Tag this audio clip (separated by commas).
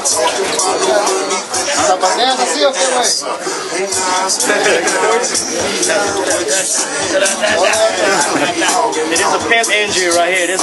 Speech, Music